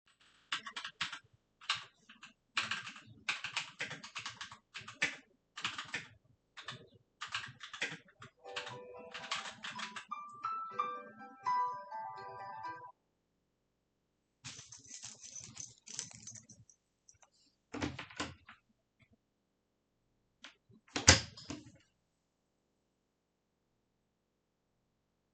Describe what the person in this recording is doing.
I was typing on my keyboard when my smartphone started ringing. I confirmed the call, took my keys, stood up, opened my door and than closed it.